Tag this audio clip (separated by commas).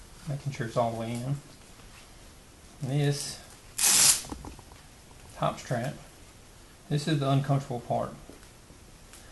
Speech, inside a small room